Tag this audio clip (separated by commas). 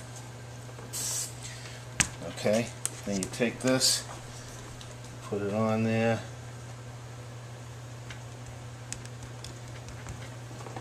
Spray, Speech